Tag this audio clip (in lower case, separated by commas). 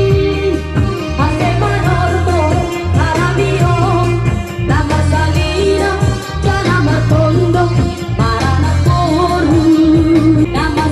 music, traditional music